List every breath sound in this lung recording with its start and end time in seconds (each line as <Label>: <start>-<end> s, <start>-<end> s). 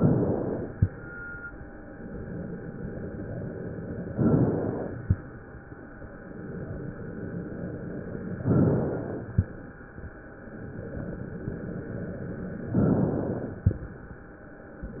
Inhalation: 0.00-0.79 s, 4.11-5.00 s, 8.37-9.31 s, 12.67-13.65 s
Exhalation: 0.83-2.08 s, 5.00-6.40 s, 9.27-10.64 s, 13.65-14.82 s